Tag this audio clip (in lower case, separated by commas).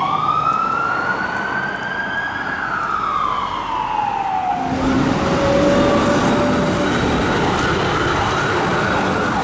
ambulance siren